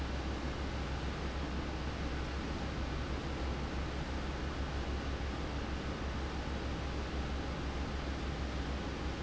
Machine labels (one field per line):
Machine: fan